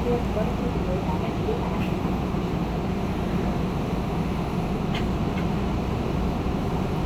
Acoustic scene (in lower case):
subway train